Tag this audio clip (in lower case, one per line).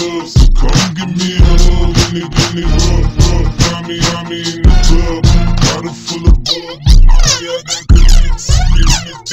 hip hop music
music